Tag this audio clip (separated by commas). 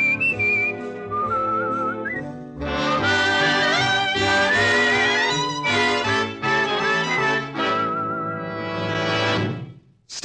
Music